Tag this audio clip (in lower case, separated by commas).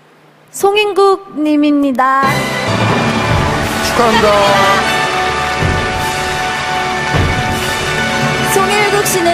speech, music, male speech, female speech